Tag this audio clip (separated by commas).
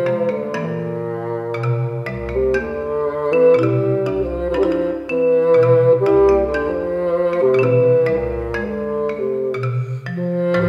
Marimba, Music